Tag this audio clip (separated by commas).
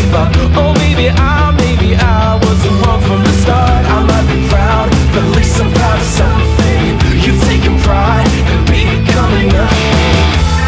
Music